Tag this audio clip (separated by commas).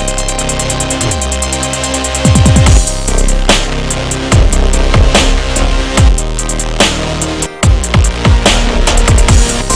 Dubstep, Electronic music, Music